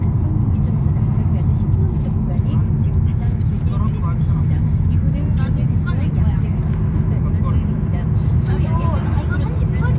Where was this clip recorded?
in a car